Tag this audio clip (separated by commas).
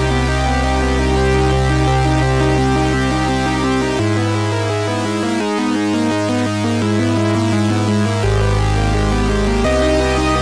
Scary music, Music